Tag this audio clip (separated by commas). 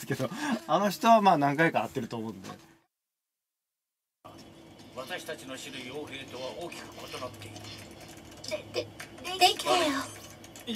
Speech